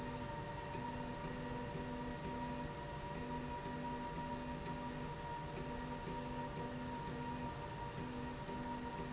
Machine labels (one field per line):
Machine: slide rail